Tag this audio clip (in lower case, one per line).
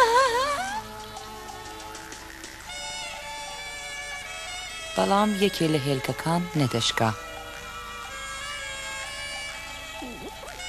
speech
music